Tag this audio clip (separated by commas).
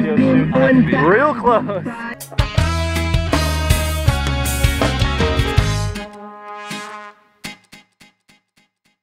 Speech, Music